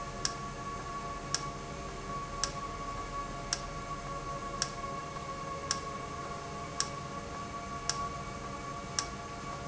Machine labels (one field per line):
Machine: valve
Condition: normal